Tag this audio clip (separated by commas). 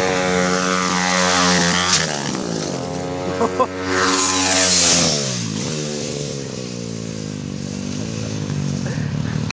vroom, Vehicle